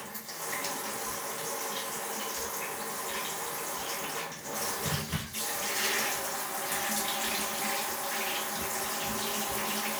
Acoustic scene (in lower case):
restroom